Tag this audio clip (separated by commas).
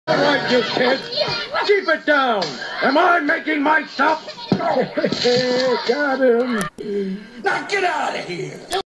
Speech